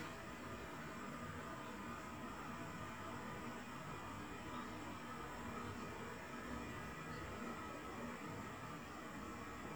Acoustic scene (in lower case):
restroom